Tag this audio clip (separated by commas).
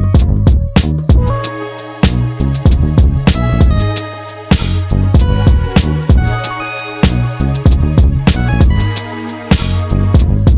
Music